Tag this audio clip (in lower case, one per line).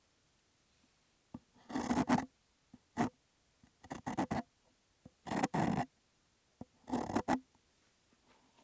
tools
wood